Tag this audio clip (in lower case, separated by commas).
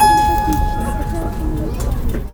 musical instrument, music, keyboard (musical)